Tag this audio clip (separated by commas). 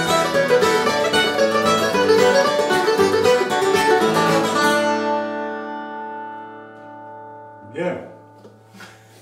Guitar, Mandolin, Speech, Music, Plucked string instrument, Musical instrument